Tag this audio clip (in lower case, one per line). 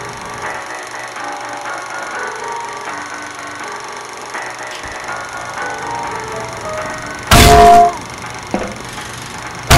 music